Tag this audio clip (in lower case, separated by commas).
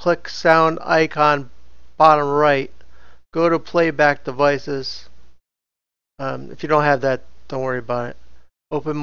speech